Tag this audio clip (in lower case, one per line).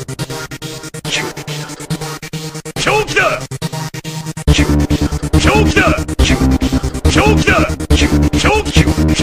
music
techno